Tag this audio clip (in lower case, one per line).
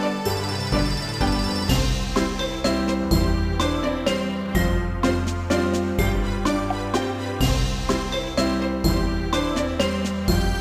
music
theme music